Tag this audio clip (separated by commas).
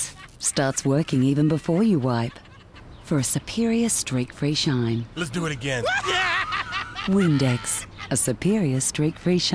Speech